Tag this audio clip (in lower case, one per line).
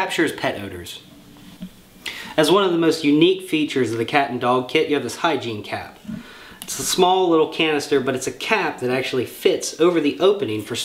speech